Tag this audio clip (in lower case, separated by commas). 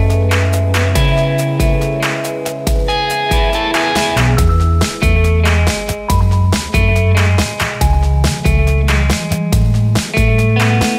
music